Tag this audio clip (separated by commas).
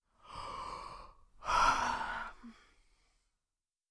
Breathing, Respiratory sounds